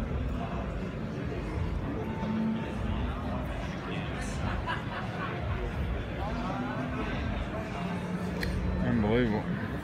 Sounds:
speech

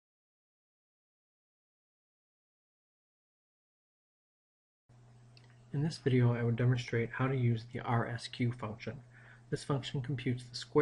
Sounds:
speech

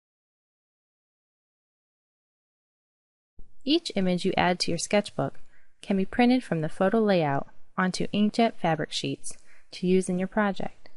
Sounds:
speech

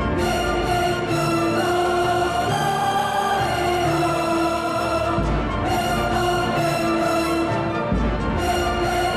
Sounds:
music

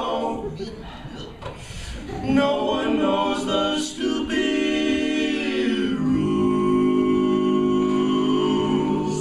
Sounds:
male singing
choir

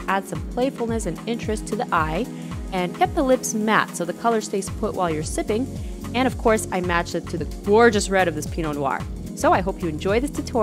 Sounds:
speech
music

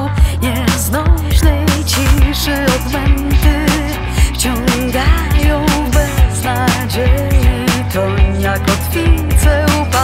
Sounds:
music

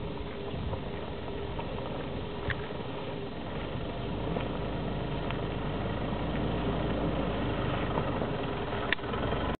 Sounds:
vehicle
car

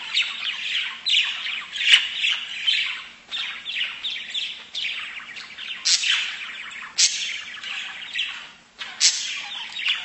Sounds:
tweeting

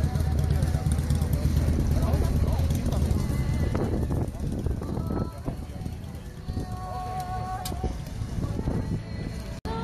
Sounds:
speech
vehicle
music

